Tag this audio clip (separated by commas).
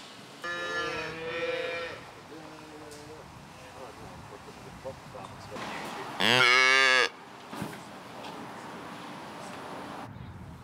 cattle mooing